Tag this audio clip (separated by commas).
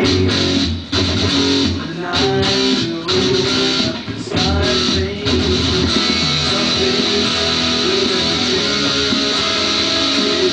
Music, Musical instrument, Guitar